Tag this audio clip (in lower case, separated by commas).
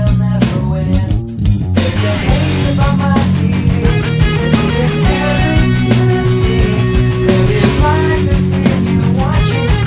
bass drum, drum kit, snare drum, rimshot, drum, percussion